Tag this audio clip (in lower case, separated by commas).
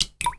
liquid, drip